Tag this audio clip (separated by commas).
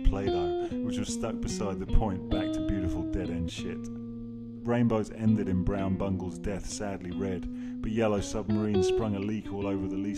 Speech, Music